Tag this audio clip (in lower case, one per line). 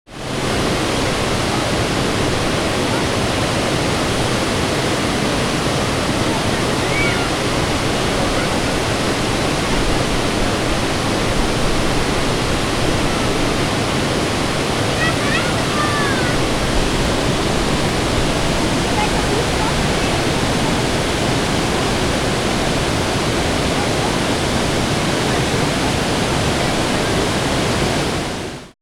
water